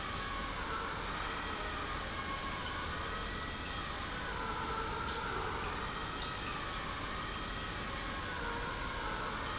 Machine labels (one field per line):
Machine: pump